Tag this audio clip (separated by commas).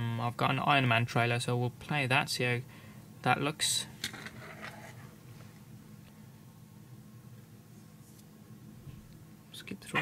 Speech